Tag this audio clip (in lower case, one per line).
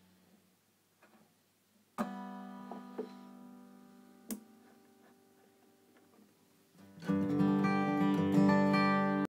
musical instrument
guitar
music
strum
plucked string instrument